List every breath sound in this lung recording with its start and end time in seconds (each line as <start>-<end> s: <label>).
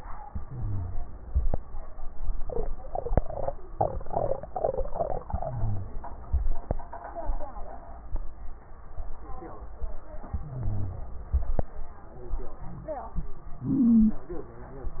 0.30-1.03 s: inhalation
0.30-1.03 s: crackles
5.33-6.06 s: inhalation
5.33-6.06 s: crackles
10.36-11.09 s: inhalation
10.36-11.09 s: crackles